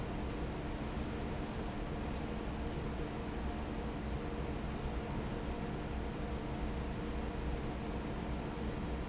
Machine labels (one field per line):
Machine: fan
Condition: normal